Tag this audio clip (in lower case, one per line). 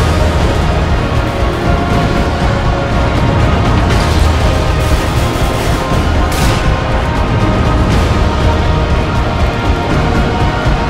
music